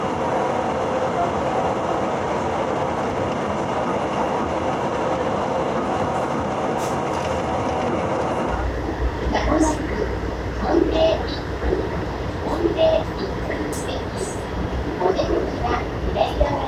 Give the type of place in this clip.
subway train